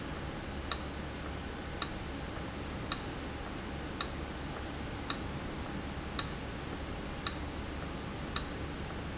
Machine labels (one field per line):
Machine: valve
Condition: abnormal